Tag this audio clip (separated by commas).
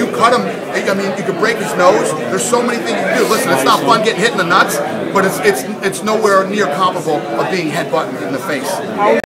Speech